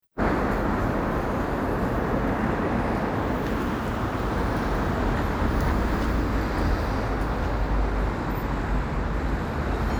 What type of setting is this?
street